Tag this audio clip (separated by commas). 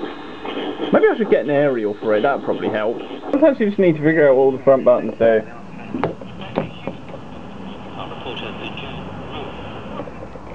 Speech